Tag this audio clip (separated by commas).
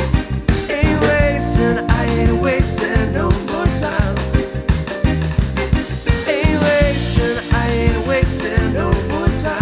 Independent music, Music, Drum kit, Drum, Percussion, Musical instrument, Guitar